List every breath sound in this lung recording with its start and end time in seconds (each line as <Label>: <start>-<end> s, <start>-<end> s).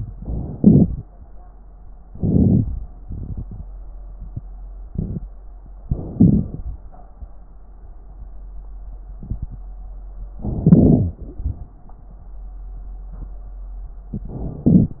Inhalation: 0.56-0.99 s, 2.10-2.61 s, 5.88-6.61 s, 10.41-11.15 s, 14.67-15.00 s
Exhalation: 3.09-3.60 s